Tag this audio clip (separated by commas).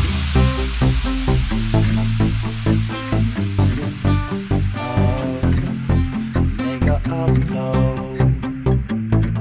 Music, White noise